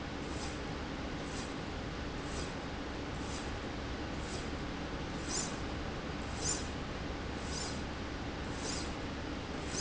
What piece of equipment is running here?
slide rail